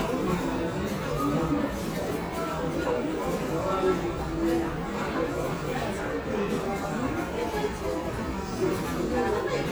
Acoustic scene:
crowded indoor space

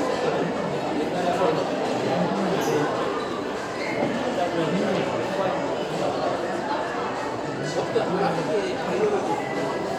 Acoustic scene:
restaurant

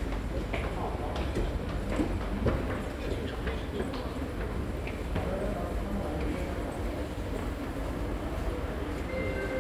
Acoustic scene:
subway station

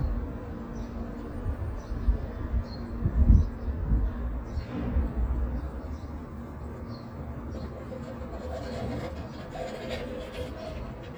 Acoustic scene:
residential area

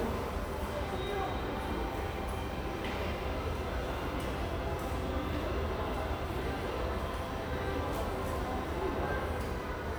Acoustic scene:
subway station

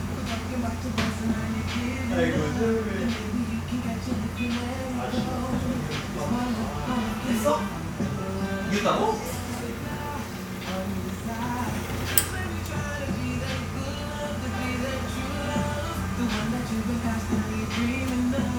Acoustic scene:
cafe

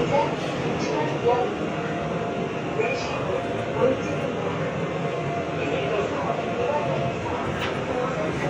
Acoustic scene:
subway train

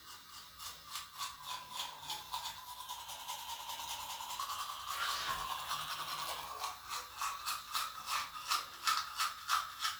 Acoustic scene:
restroom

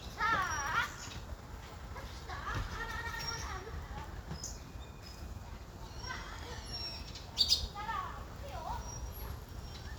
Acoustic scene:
park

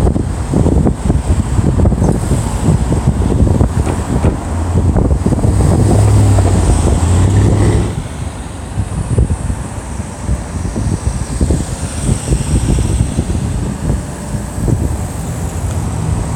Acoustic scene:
street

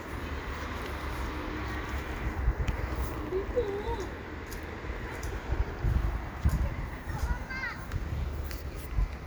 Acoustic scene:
residential area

